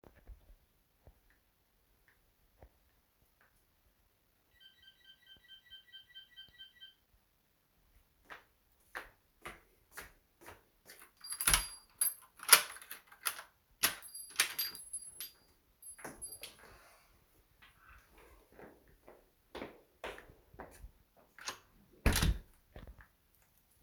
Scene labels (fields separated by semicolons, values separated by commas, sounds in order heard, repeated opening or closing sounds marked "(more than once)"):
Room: living room, hallway; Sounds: bell ringing, footsteps, door (more than once), keys